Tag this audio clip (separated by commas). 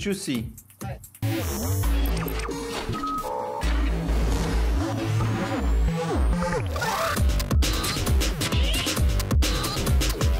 Speech, Music